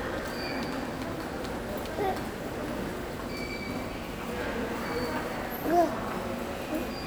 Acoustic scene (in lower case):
subway station